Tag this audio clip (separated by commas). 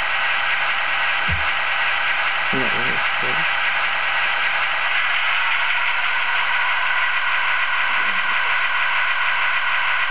Speech